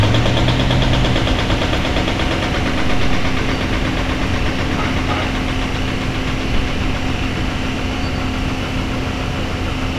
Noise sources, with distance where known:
hoe ram

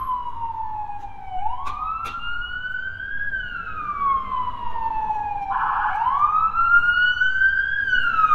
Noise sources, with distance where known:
siren, near

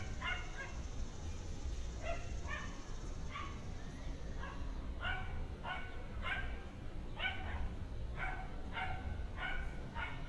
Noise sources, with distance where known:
dog barking or whining, near

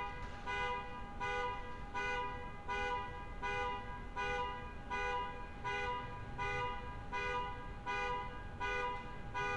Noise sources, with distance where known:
car alarm, near

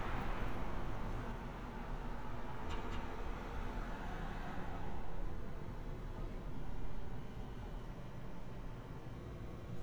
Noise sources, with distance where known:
background noise

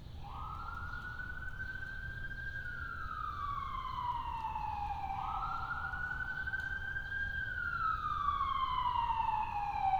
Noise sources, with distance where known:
siren, near

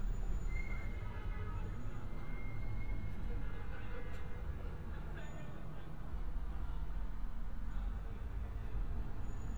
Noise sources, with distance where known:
car horn, far; person or small group talking, far

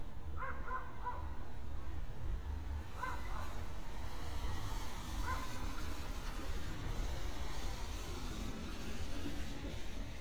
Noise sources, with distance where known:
medium-sounding engine; dog barking or whining

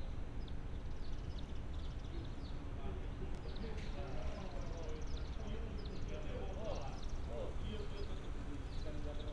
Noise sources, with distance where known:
person or small group talking, near

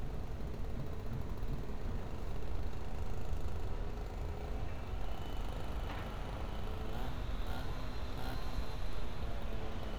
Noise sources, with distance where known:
unidentified powered saw, far

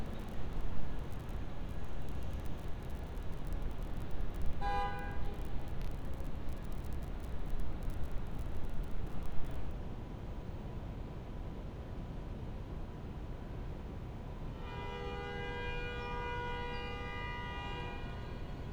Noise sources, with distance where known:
car horn, near

